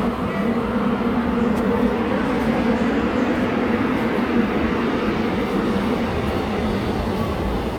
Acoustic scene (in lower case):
subway station